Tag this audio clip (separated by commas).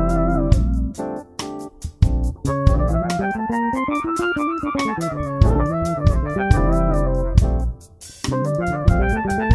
Organ, playing electronic organ, Electronic organ